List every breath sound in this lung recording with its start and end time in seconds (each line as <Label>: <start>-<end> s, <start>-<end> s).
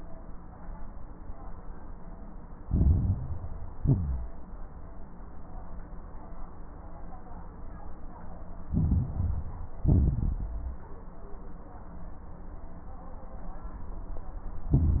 Inhalation: 2.66-3.74 s, 8.72-9.80 s, 14.73-15.00 s
Exhalation: 3.76-4.39 s, 9.84-10.82 s
Crackles: 2.66-3.74 s, 3.76-4.39 s, 8.72-9.80 s, 9.84-10.82 s, 14.73-15.00 s